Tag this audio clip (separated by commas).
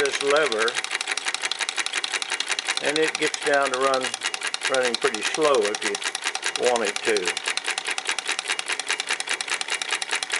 Speech, Engine